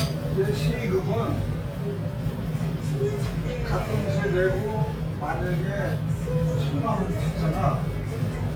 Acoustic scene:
restaurant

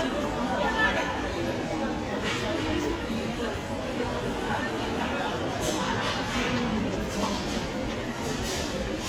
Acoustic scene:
crowded indoor space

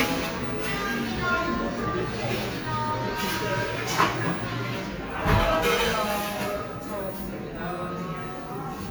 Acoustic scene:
cafe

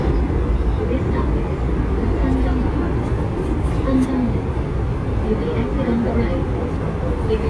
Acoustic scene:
subway train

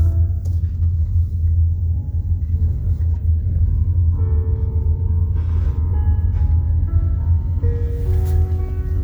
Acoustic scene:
car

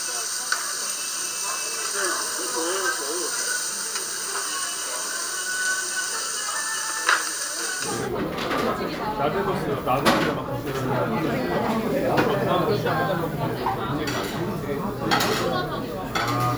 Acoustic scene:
restaurant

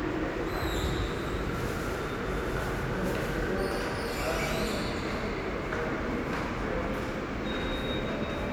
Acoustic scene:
subway station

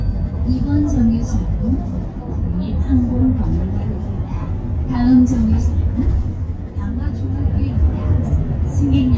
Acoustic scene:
bus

